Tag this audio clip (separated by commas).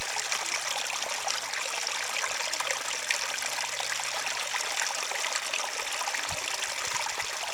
Water, Stream